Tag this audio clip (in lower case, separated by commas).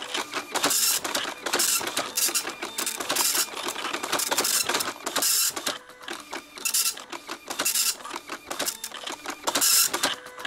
music, printer